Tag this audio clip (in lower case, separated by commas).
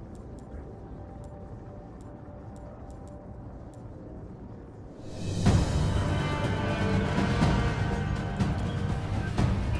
music